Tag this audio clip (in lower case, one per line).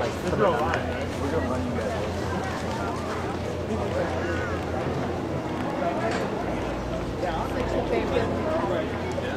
speech